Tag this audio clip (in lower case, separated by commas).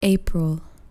woman speaking, speech, human voice